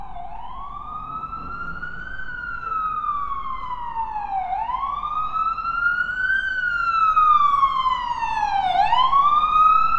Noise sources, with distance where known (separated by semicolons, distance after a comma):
siren, near